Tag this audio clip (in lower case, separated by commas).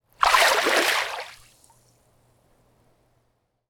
water, liquid, splash